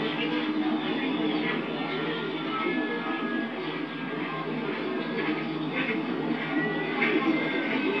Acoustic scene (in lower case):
park